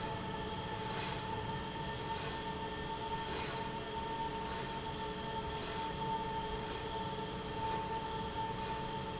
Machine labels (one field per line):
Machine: slide rail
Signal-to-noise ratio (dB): -6 dB